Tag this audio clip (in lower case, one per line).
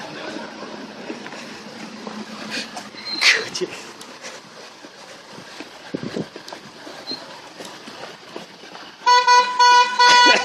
speech
toot
outside, urban or man-made